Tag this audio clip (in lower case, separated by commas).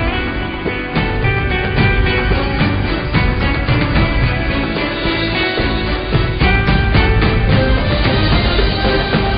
music